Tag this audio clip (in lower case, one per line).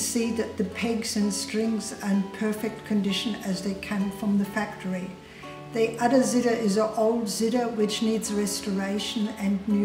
music
speech